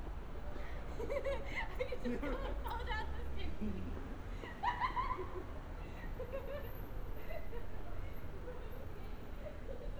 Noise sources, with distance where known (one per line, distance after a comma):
person or small group talking, near